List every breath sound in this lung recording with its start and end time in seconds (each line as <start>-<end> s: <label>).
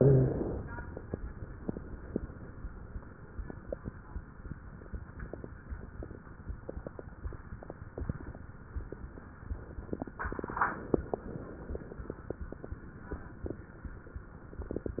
0.00-0.60 s: exhalation
0.00-0.60 s: wheeze